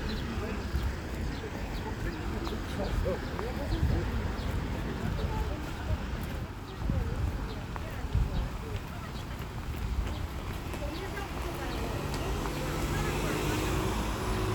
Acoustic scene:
street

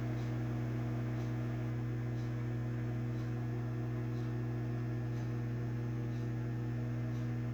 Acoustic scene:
kitchen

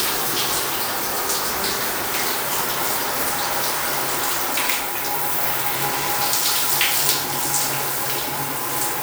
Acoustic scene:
restroom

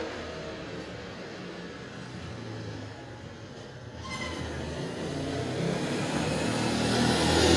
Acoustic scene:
residential area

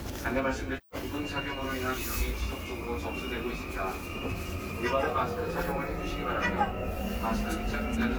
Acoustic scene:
subway train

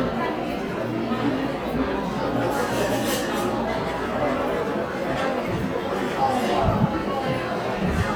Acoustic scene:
crowded indoor space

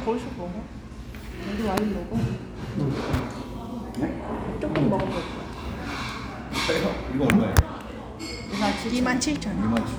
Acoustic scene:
restaurant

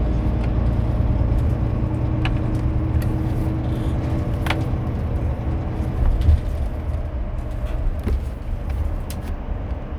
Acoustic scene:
car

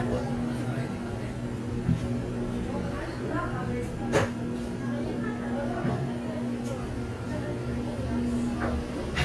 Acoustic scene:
cafe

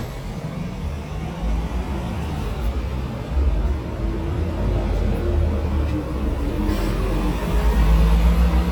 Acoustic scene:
street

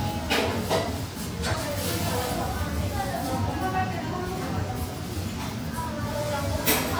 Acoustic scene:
cafe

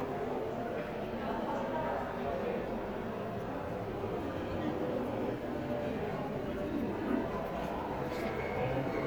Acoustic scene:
crowded indoor space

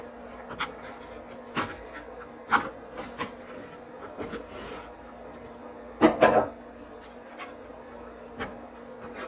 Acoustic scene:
kitchen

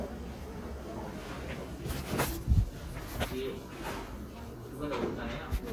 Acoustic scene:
crowded indoor space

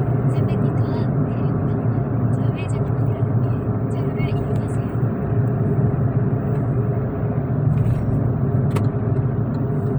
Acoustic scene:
car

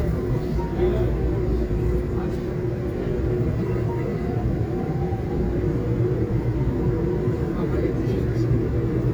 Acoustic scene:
subway train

